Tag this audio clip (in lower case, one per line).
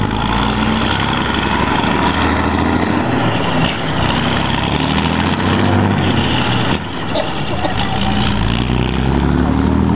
truck
vehicle